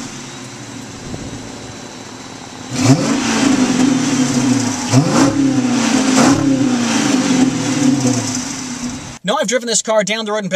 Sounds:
Car, Vehicle, Speech

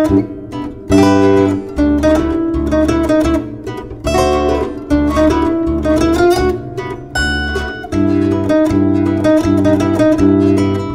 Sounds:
Music

